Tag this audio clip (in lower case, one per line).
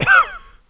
cough
respiratory sounds